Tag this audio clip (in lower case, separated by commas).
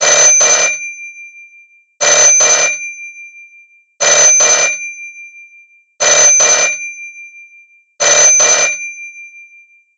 alarm, telephone